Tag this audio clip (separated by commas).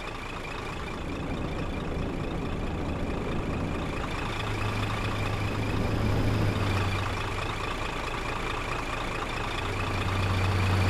Truck